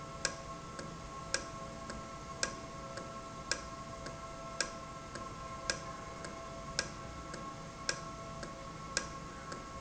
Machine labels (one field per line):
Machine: valve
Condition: normal